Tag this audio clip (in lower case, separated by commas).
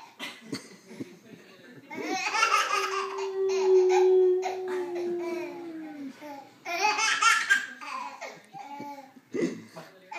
baby laughter